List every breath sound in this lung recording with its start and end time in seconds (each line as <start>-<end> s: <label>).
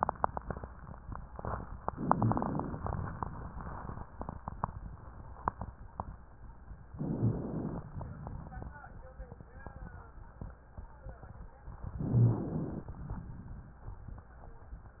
1.90-2.87 s: inhalation
6.91-7.88 s: inhalation
6.91-7.88 s: crackles
7.89-9.11 s: exhalation
12.03-12.87 s: inhalation
12.88-14.38 s: exhalation